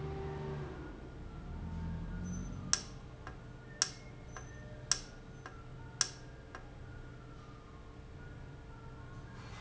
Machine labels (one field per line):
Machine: valve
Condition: normal